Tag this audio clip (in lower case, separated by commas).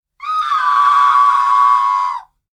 screaming, human voice